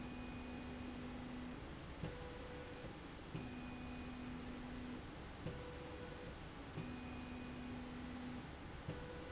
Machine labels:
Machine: slide rail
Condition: normal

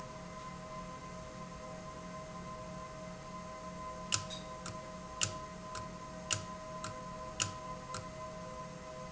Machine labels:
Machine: valve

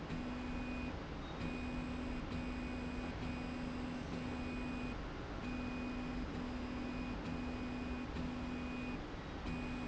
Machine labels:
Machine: slide rail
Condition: normal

